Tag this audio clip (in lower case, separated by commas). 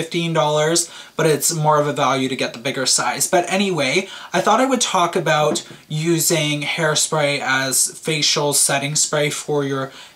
speech